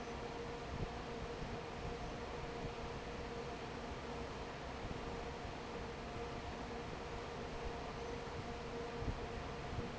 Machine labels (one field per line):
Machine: fan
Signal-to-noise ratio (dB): 6 dB